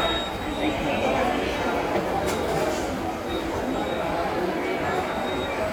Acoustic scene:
subway station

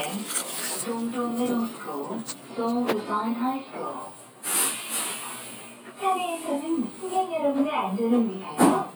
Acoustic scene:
bus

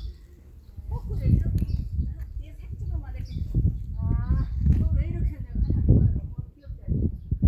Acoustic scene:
park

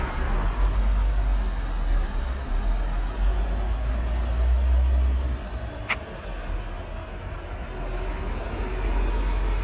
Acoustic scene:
street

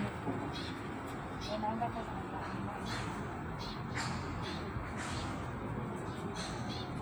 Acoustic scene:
park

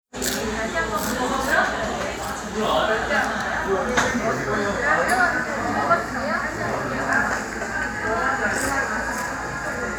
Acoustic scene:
cafe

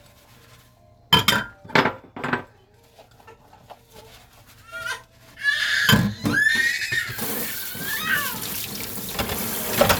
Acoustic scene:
kitchen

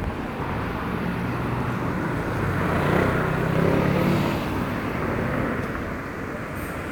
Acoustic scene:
residential area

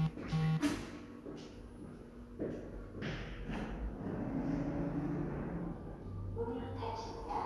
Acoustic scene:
elevator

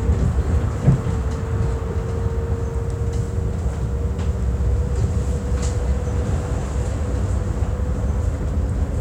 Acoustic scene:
bus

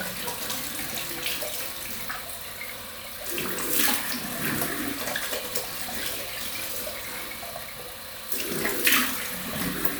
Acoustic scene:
restroom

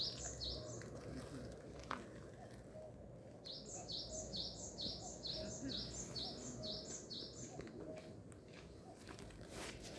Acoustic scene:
park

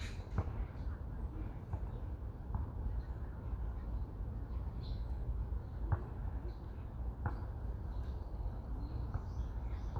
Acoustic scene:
park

